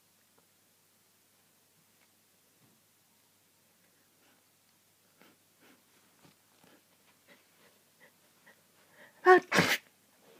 A person sneezes